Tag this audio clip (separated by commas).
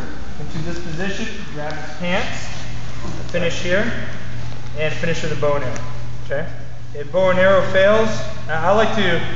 Speech